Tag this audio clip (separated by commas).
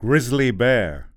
Male speech, Speech, Human voice